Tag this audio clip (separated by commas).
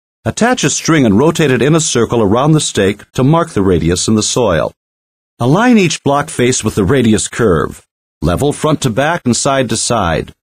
Speech